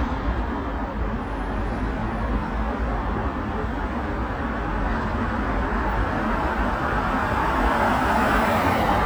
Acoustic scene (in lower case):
street